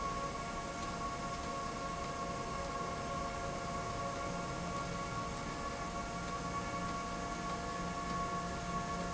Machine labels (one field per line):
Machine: slide rail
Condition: abnormal